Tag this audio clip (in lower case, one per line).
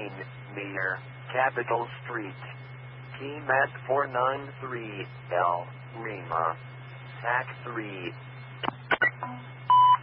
speech